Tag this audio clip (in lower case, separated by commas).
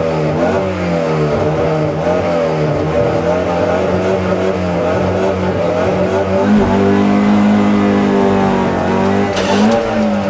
motor vehicle (road), vehicle, car